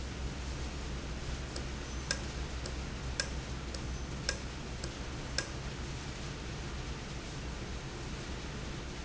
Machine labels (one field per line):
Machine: valve